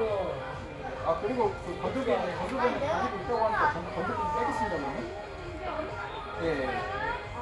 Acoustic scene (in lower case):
crowded indoor space